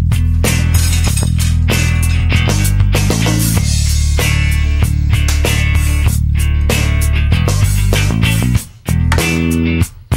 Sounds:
firing cannon

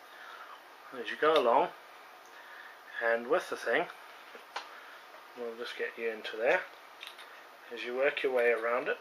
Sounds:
speech

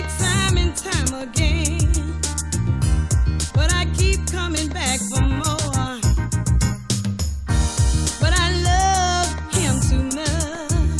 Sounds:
music

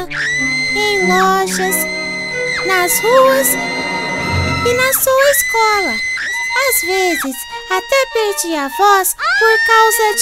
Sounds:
people screaming

